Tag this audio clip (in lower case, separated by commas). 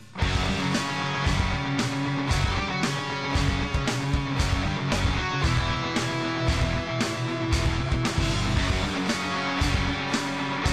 music